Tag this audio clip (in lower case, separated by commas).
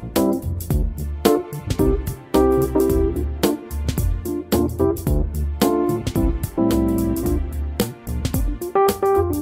music